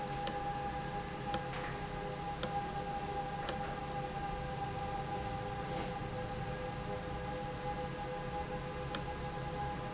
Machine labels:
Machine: valve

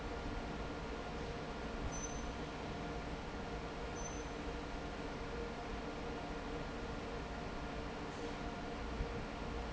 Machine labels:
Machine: fan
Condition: normal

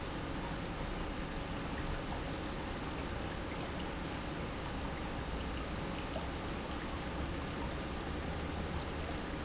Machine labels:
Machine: pump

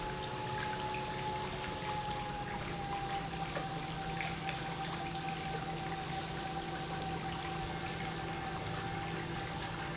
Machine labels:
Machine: pump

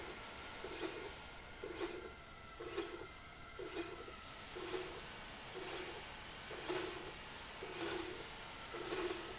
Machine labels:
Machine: slide rail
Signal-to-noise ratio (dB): 6 dB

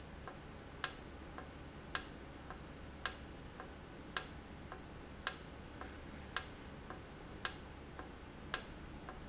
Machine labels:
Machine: valve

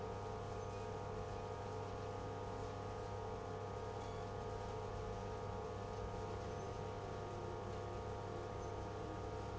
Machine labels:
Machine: pump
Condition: abnormal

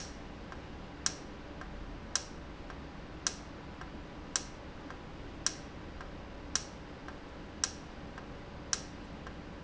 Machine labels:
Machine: valve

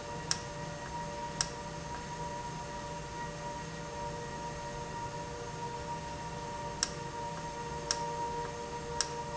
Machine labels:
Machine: valve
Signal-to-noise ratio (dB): -6 dB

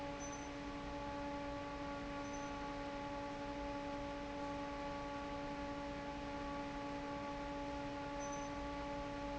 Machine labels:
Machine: fan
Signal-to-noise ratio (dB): 6 dB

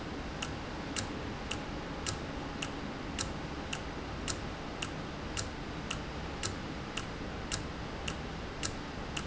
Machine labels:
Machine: valve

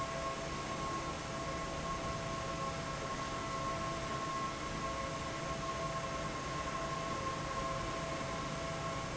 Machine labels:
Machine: fan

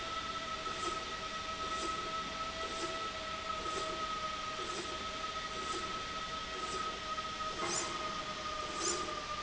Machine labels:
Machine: slide rail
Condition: normal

